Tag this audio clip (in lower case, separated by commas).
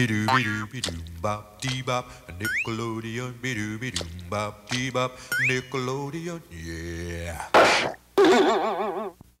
music